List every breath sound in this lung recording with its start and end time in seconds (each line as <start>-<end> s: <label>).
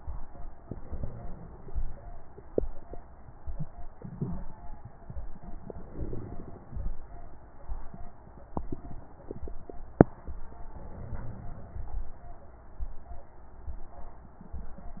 0.62-1.80 s: inhalation
5.66-6.92 s: inhalation
10.72-11.98 s: inhalation